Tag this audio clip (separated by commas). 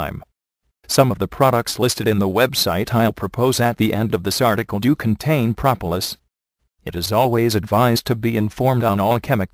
Speech